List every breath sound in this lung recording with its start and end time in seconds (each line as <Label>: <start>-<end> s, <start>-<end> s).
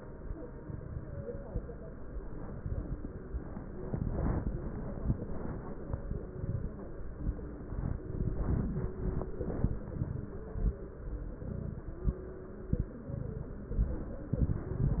Inhalation: 0.62-1.42 s, 2.28-3.08 s, 3.86-4.65 s, 5.91-6.71 s, 8.09-8.89 s, 11.44-11.99 s, 13.04-13.59 s, 14.37-15.00 s
Crackles: 0.62-1.42 s, 2.28-3.08 s, 3.86-4.65 s, 5.91-6.71 s, 8.09-8.89 s, 11.44-11.99 s, 13.04-13.59 s, 14.37-15.00 s